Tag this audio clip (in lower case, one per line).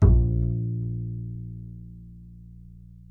music
musical instrument
bowed string instrument